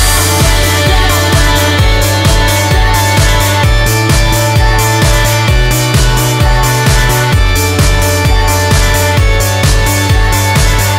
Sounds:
Music, Independent music

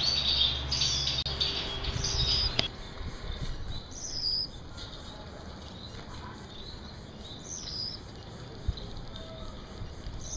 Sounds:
mynah bird singing

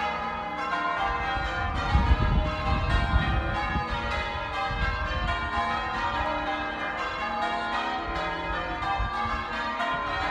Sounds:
church bell ringing

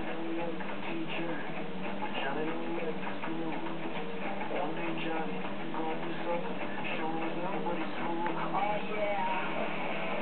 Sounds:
Music

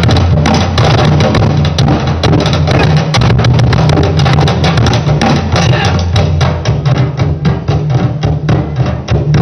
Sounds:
Music, Percussion, Wood block

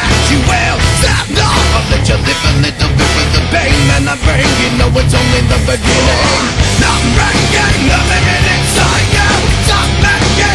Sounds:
Music

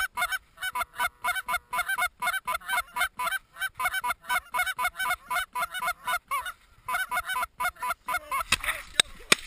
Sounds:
Speech, Honk

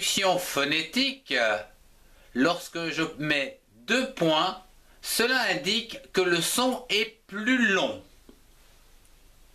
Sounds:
Speech

